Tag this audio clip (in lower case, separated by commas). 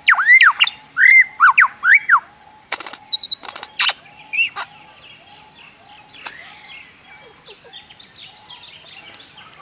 mynah bird singing